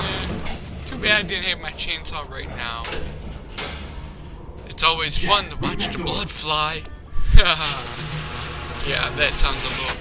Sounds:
speech

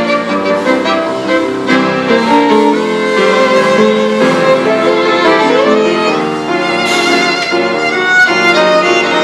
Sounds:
fiddle
musical instrument
music

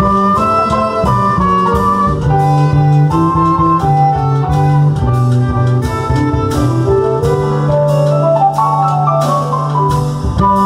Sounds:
percussion
drum kit
rimshot
snare drum
drum

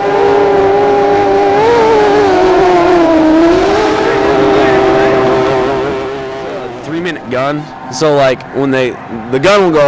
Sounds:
motorboat
speech
vehicle
water vehicle

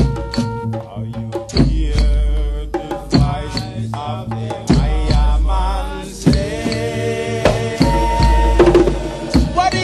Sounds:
music

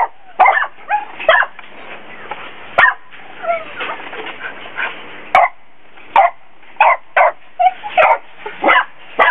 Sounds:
dog
dog bow-wow
bow-wow

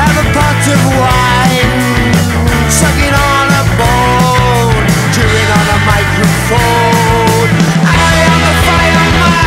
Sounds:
music
sampler

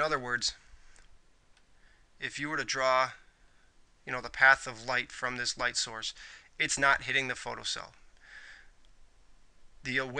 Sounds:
speech

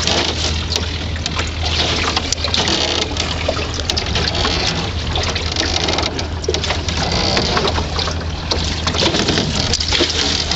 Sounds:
water vehicle
canoe
rowboat

